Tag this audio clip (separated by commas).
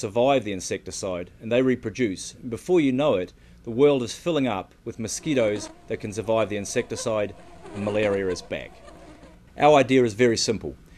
Fly, Insect, bee or wasp